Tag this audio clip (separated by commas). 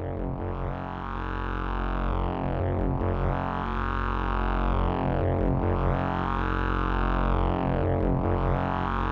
Sampler